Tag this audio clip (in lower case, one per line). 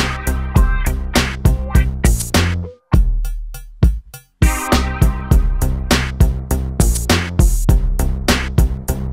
drum machine
music